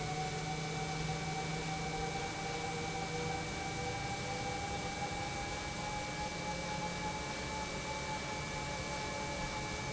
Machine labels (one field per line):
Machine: pump